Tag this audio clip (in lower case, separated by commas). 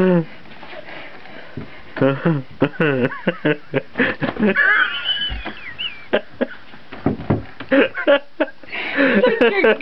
speech